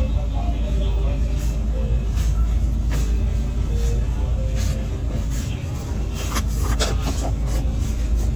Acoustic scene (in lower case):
bus